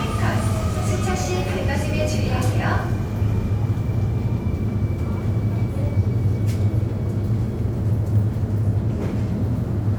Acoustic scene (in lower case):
subway station